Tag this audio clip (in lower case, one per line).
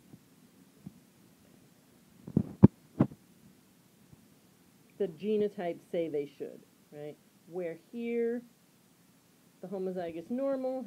speech